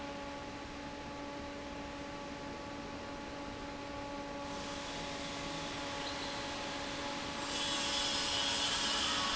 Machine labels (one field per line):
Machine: fan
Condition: normal